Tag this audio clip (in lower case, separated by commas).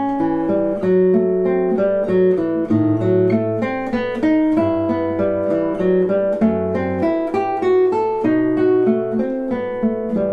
strum, playing acoustic guitar, guitar, music, musical instrument, acoustic guitar, plucked string instrument